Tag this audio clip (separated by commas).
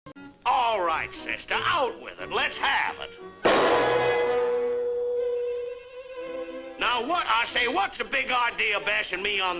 fiddle, Music, Speech